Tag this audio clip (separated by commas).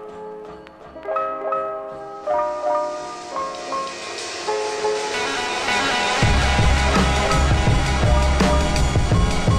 Music